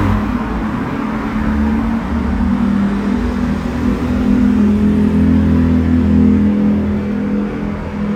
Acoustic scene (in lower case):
street